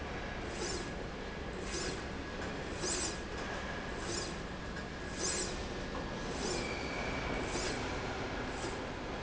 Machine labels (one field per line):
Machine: slide rail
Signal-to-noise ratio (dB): -6 dB